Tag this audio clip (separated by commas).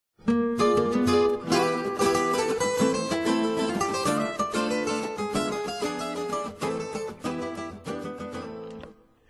Mandolin